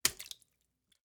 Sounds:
Liquid, Splash

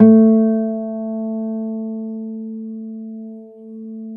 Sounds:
Musical instrument, Guitar, Music, Plucked string instrument, Acoustic guitar

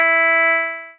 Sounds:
Keyboard (musical), Musical instrument, Music, Piano

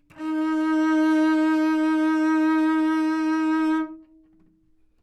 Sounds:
Bowed string instrument, Musical instrument, Music

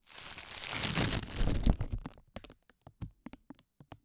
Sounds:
Crackle

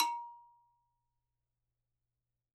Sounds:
Bell

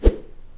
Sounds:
swish

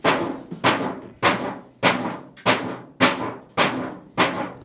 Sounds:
Tools

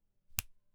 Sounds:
Hands, Finger snapping

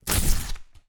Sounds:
Tearing

